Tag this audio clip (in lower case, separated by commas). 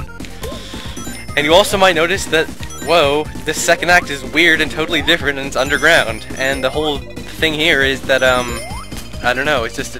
speech